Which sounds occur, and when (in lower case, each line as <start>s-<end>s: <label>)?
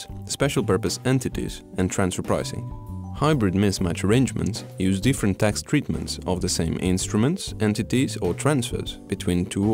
0.0s-9.7s: music
0.2s-1.6s: male speech
1.7s-2.6s: male speech
3.1s-9.7s: male speech
4.4s-4.5s: tick